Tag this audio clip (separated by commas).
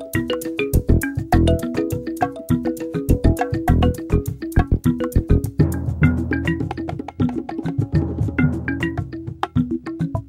Music, Country